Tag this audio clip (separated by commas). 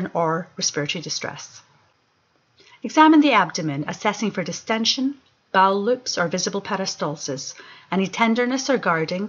monologue